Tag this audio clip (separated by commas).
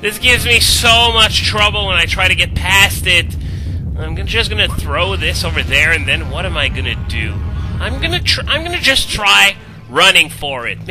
Speech